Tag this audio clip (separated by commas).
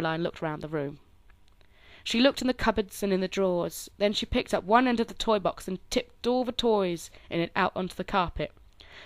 Speech